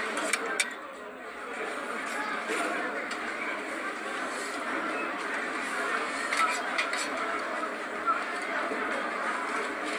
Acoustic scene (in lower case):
restaurant